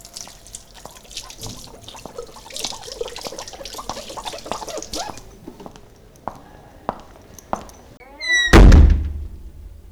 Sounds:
Domestic sounds, Door, Slam, footsteps

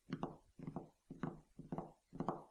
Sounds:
Tap

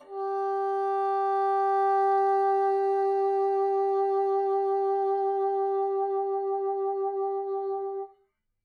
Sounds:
woodwind instrument, Music, Musical instrument

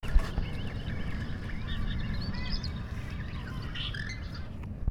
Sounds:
Bird, Animal, Wild animals

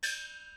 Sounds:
Music, Gong, Percussion, Musical instrument

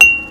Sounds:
Domestic sounds, dishes, pots and pans

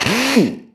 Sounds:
Drill, Power tool, Tools

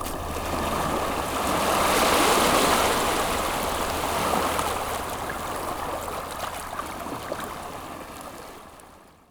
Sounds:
Water, Ocean

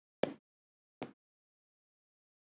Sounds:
footsteps

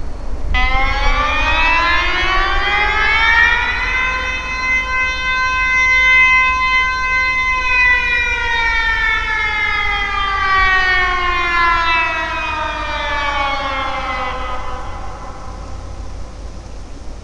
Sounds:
Alarm

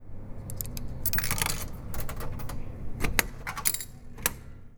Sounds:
Domestic sounds, Coin (dropping)

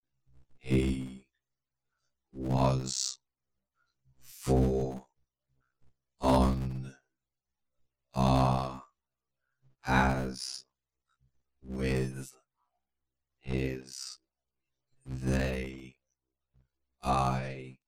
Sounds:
Human voice, Speech

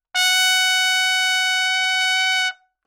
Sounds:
Music, Musical instrument, Trumpet, Brass instrument

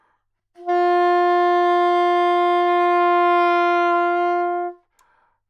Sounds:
Music, woodwind instrument, Musical instrument

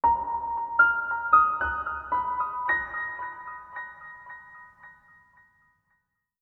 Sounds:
Piano, Musical instrument, Keyboard (musical), Music

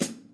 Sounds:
Drum, Snare drum, Musical instrument, Percussion, Music

